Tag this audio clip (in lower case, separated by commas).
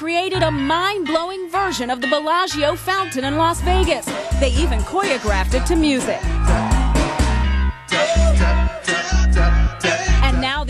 speech, music